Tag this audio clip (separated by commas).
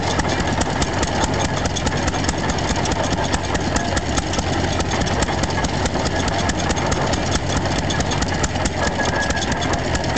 Idling, Medium engine (mid frequency), Engine